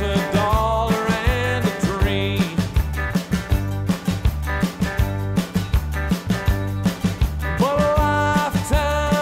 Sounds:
music

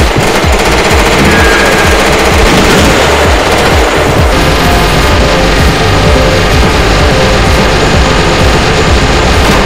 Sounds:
machine gun shooting

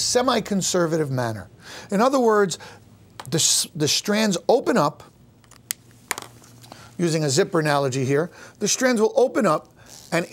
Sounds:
inside a small room, speech

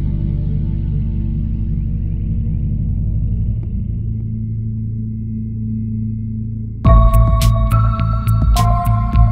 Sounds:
soundtrack music, music

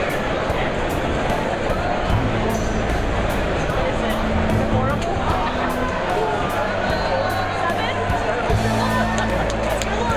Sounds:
music, speech

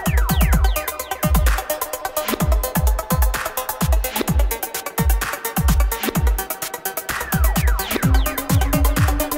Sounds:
music, dubstep, electronic music

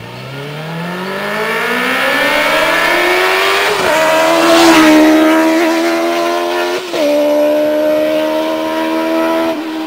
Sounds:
vroom, engine, motor vehicle (road), vehicle, medium engine (mid frequency), car

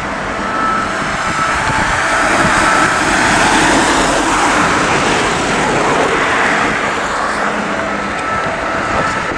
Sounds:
siren, ambulance (siren), emergency vehicle

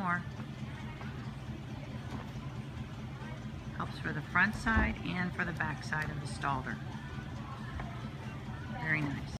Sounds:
music, speech

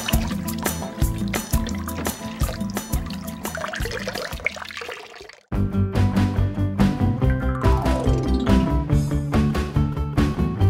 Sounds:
music

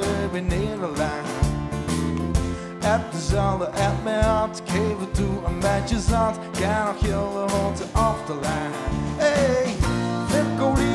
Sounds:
music

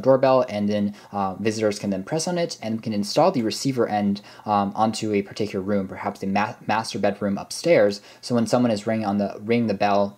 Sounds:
speech

